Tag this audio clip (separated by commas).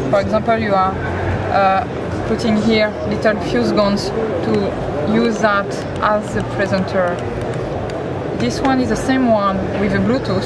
Speech